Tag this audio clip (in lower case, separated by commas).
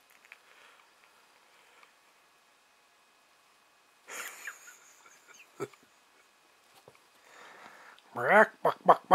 speech